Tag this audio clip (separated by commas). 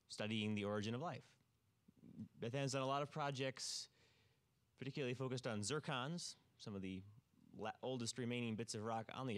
Speech